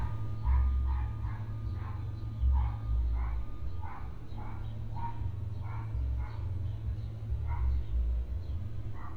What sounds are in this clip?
dog barking or whining